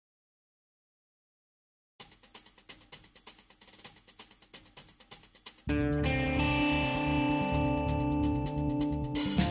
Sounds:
hi-hat

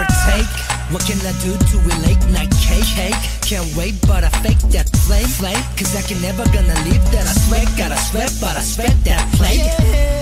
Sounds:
music

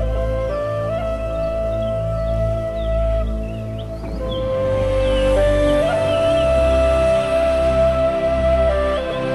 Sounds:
music, lullaby

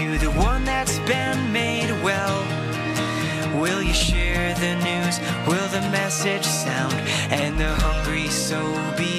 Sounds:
music

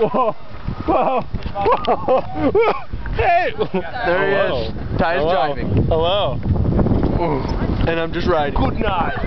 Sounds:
speech, bicycle

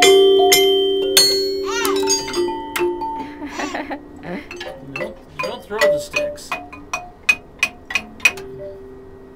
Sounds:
speech, music, marimba

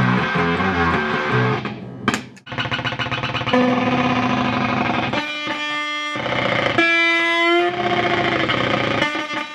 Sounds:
music, musical instrument, guitar, bass guitar, effects unit, plucked string instrument, tapping (guitar technique)

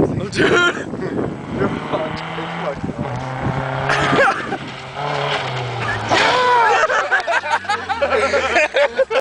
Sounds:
speech, vehicle, car

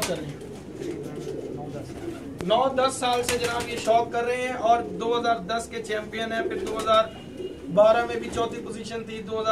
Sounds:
pigeon, outside, rural or natural, bird, speech

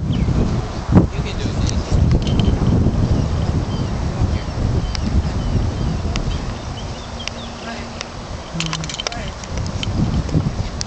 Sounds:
speech

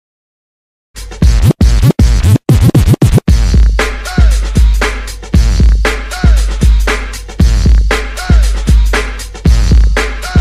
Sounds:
music, outside, urban or man-made

